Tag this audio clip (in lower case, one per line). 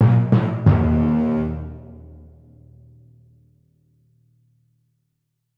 drum
musical instrument
percussion
music